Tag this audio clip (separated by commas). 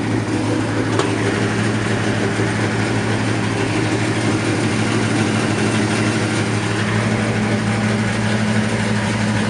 Vehicle, Car